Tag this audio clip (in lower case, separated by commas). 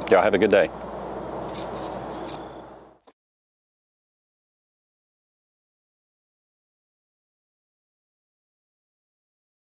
outside, rural or natural, silence, speech